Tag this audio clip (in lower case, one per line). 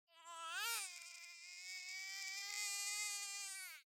crying
human voice